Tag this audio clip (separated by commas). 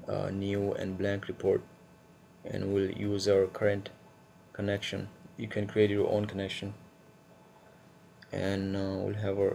Speech